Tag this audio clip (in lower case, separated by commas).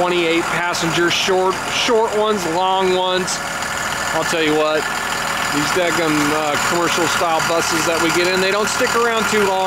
idling, vehicle, engine, bus, speech